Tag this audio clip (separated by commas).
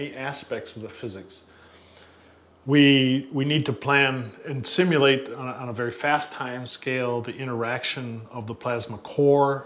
Speech